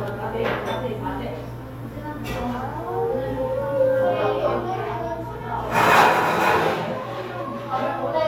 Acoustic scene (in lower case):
cafe